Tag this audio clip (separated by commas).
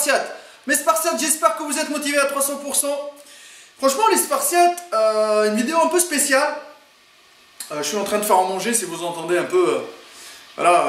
Speech